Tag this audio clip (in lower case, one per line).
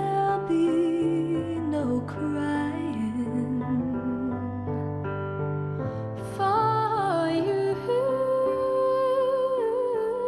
music